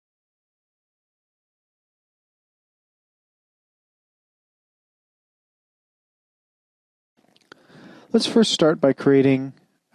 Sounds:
inside a small room
speech
silence

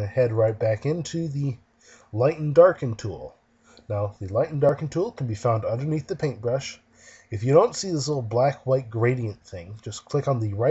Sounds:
speech

